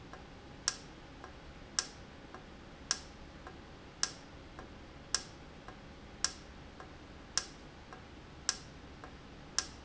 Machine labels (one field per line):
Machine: valve